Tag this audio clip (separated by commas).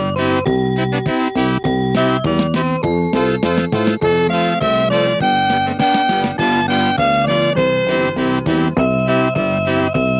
Music